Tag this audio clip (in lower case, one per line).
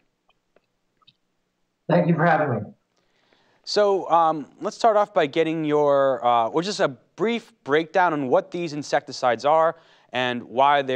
speech